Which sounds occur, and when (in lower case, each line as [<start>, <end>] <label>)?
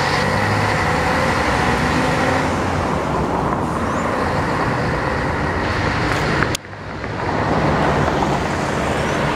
[0.00, 2.66] bus
[2.64, 9.35] traffic noise
[3.83, 4.05] squeal
[6.37, 6.59] tick
[6.69, 7.31] generic impact sounds
[8.02, 8.39] generic impact sounds
[8.97, 9.19] squeal